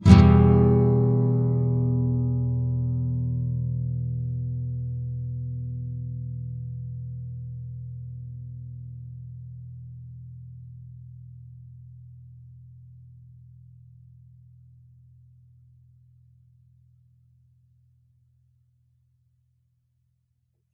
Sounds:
guitar
musical instrument
plucked string instrument
music

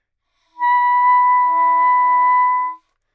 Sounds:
music
musical instrument
wind instrument

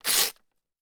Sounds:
tearing

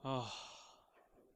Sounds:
human voice
sigh

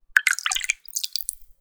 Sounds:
water
liquid

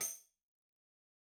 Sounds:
musical instrument
music
percussion
tambourine

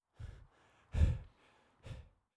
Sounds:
breathing
respiratory sounds

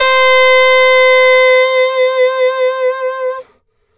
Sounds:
woodwind instrument
music
musical instrument

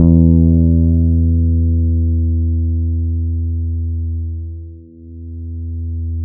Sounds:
guitar
musical instrument
bass guitar
plucked string instrument
music

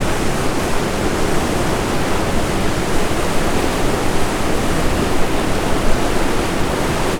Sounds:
water
stream

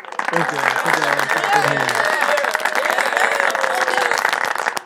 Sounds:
crowd
human voice
human group actions
cheering
applause

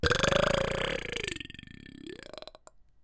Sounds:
eructation

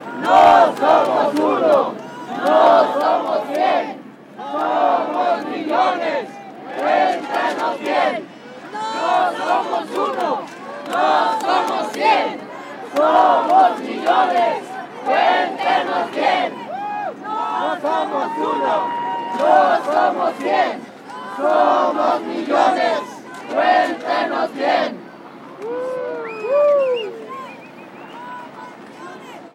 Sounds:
singing
human voice

